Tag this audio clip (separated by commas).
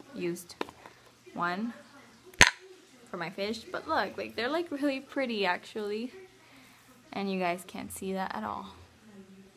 inside a small room, Speech